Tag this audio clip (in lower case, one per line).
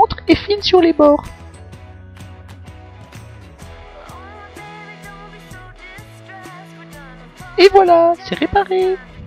speech
music